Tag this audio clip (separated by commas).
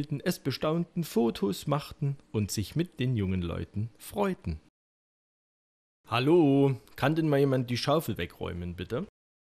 Speech